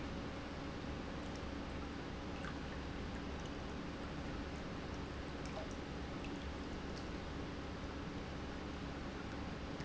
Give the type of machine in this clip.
pump